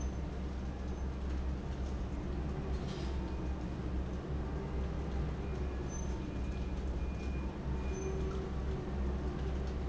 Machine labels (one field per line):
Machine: fan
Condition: abnormal